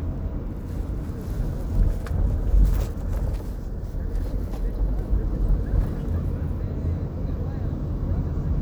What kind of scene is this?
car